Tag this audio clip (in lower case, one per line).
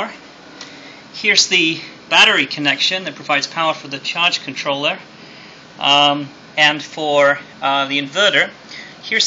speech